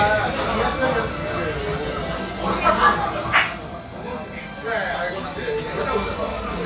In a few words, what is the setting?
crowded indoor space